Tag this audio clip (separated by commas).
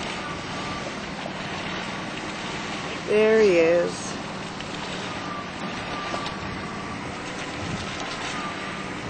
Speech